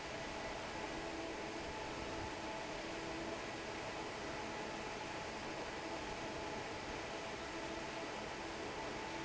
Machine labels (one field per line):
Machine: fan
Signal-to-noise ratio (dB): 6 dB